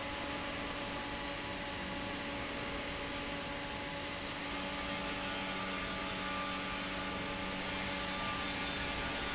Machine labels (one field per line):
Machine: fan